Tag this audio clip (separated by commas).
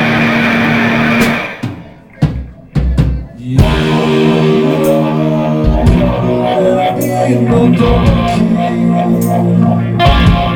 Music